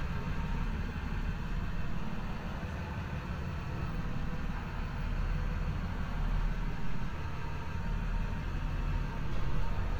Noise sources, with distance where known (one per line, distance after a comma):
large-sounding engine, near